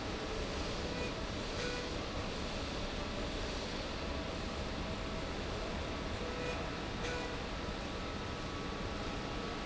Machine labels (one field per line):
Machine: slide rail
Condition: normal